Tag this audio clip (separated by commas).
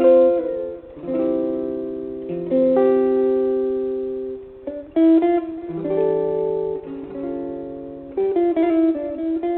Guitar, Music, Strum, Musical instrument, Plucked string instrument